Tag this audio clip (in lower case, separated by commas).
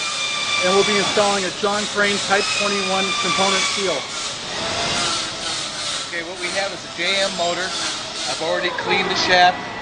speech